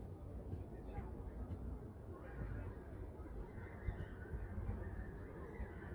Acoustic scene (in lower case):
residential area